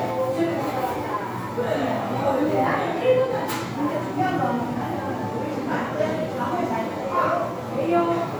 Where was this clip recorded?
in a crowded indoor space